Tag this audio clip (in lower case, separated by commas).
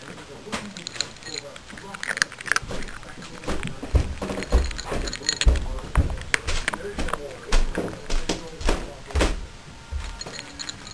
speech